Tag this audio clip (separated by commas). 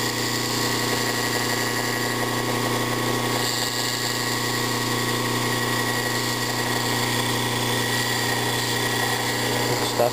inside a small room, Speech